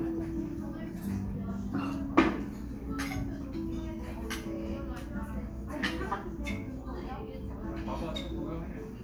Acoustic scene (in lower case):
cafe